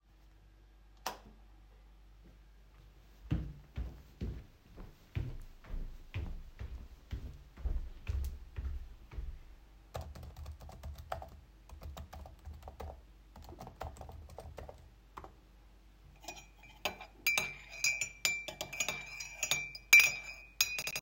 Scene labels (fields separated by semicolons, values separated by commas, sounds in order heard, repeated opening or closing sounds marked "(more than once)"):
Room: living room; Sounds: light switch, footsteps, keyboard typing, cutlery and dishes